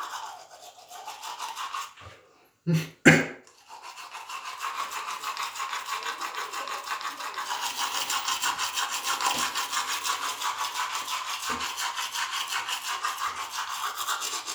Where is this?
in a restroom